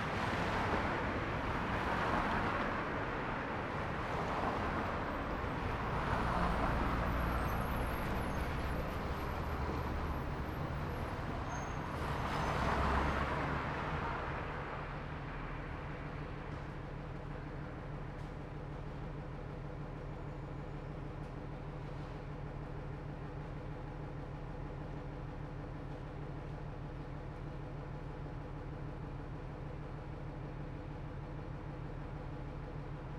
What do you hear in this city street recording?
car, bus, car wheels rolling, bus wheels rolling, bus brakes, bus engine idling